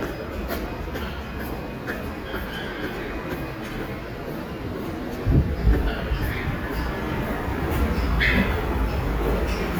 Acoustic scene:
subway station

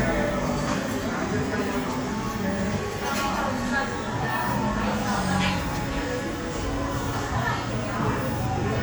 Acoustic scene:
cafe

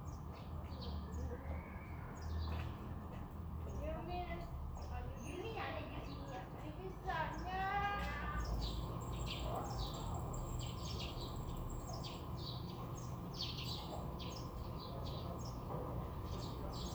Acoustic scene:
residential area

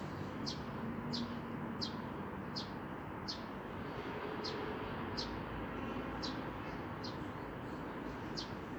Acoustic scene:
residential area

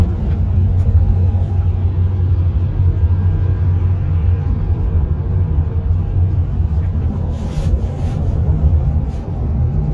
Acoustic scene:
car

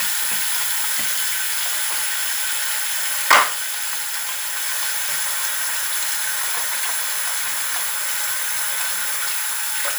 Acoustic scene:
restroom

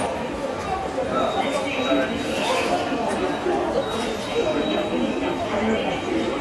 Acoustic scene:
subway station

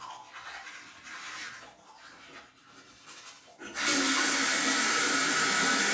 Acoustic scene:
restroom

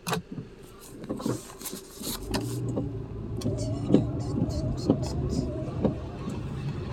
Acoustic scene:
car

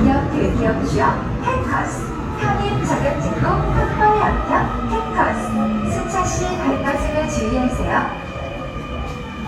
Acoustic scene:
subway station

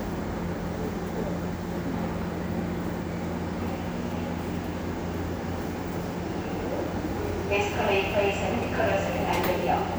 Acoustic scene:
subway station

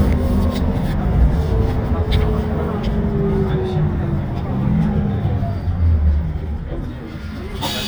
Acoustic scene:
bus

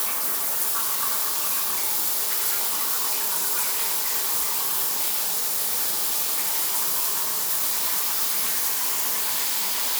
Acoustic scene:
restroom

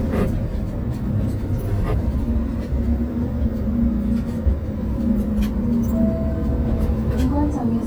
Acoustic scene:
bus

